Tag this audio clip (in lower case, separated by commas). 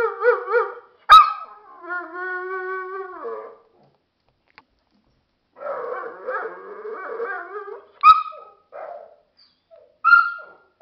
dog, pets, animal